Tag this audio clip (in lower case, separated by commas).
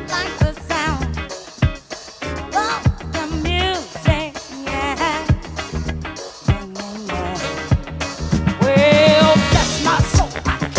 music